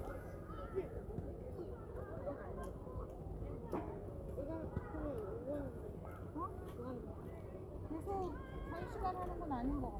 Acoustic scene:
residential area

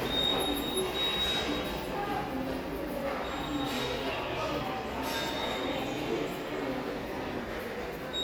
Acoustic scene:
subway station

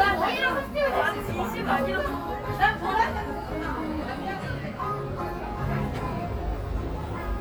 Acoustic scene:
street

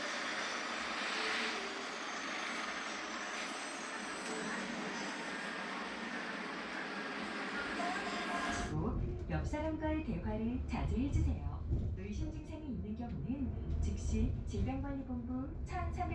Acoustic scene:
bus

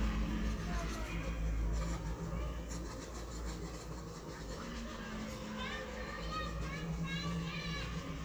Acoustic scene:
residential area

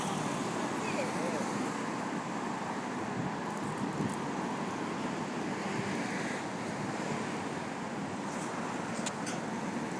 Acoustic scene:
street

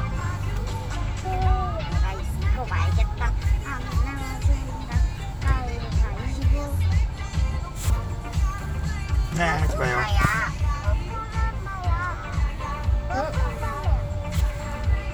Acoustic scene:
car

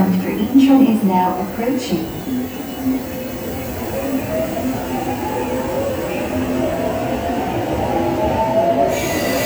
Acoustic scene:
subway station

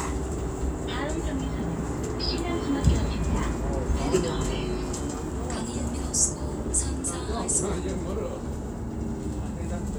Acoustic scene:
bus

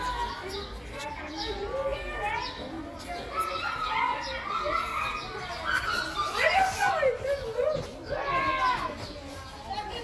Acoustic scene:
park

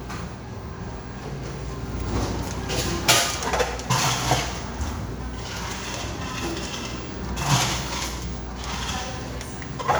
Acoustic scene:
cafe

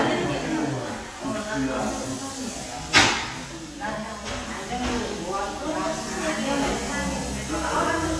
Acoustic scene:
crowded indoor space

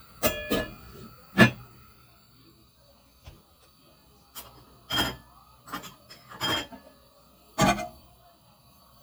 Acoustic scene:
kitchen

